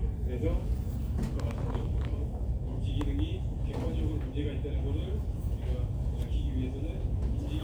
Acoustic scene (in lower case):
crowded indoor space